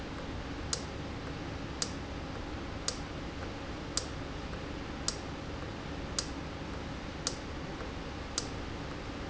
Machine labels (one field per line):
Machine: valve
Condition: normal